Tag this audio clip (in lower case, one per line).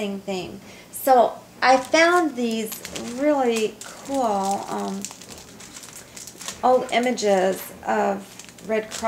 speech